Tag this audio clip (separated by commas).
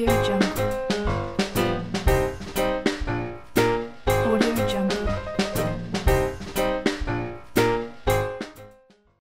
Music, Speech, Female speech